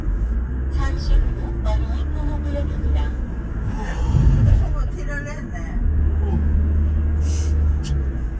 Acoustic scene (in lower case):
car